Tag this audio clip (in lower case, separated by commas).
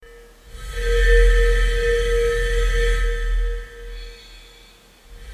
glass